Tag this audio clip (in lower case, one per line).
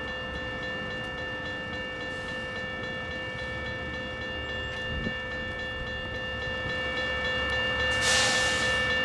train horning